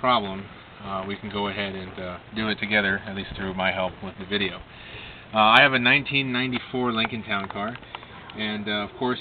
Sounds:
Speech

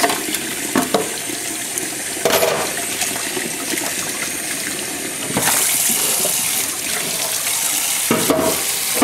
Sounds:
Water

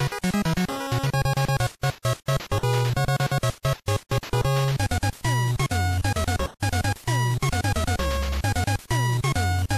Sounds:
Video game music, Music

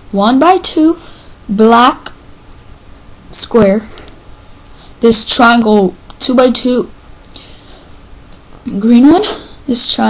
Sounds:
Speech

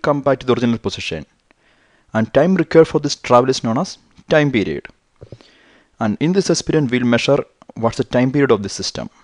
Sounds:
Speech

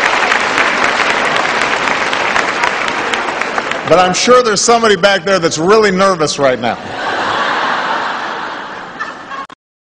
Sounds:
Narration, Speech, man speaking

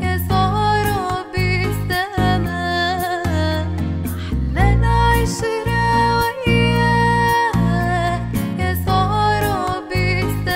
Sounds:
Music, Funk

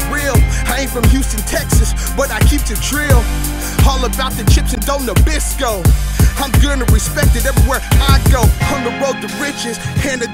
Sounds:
Hip hop music, Rapping, Music

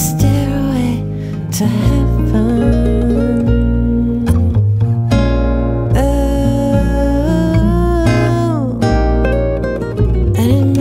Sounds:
Song, Acoustic guitar, Musical instrument, Rock music, Guitar, Music

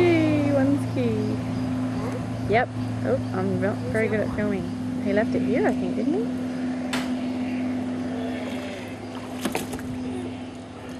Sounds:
Speech

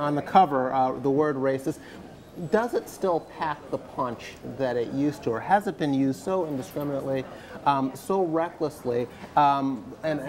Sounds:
Speech

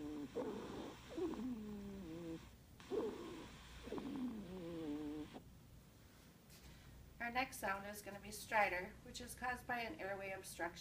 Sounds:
Speech

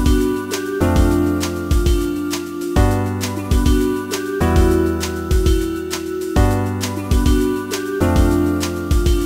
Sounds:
Jazz, Music

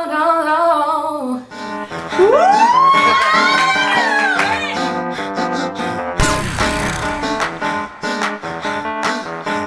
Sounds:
inside a small room, Music

